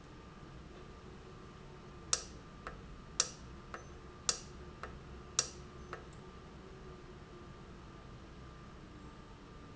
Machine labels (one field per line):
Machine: valve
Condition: normal